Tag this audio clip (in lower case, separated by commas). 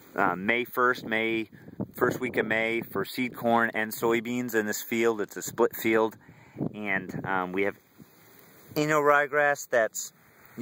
speech